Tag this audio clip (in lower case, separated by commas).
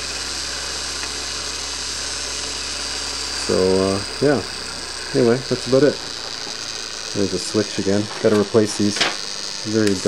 speech